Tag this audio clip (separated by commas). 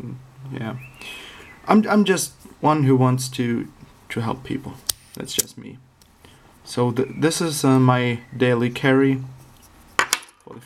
strike lighter